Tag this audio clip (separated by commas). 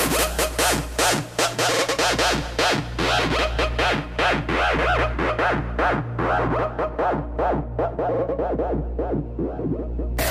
Music